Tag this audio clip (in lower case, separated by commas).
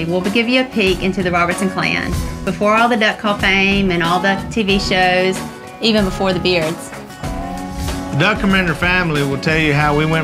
speech, music